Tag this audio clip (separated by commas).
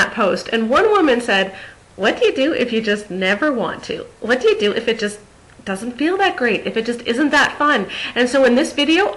Speech